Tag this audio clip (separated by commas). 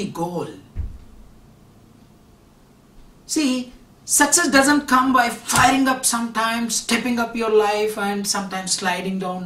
man speaking, Speech